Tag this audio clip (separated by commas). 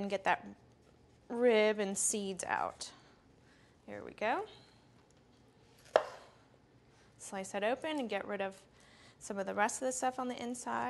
Speech